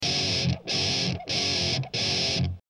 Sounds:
guitar, music, musical instrument, plucked string instrument

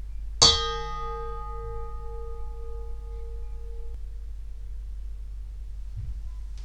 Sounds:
dishes, pots and pans, bell, home sounds

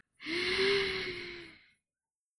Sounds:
breathing, respiratory sounds

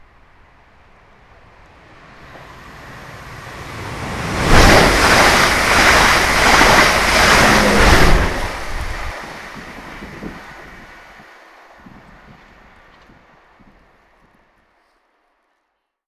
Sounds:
train, rail transport, vehicle

